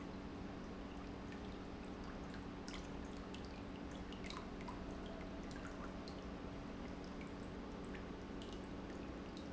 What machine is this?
pump